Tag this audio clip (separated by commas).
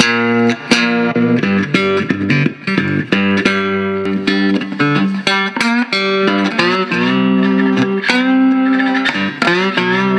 Musical instrument, Plucked string instrument, Electric guitar, Guitar, Music